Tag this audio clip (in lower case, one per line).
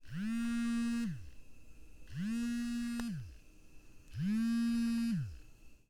alarm
telephone